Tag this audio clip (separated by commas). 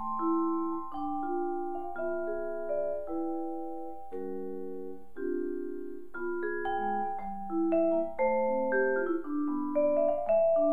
playing vibraphone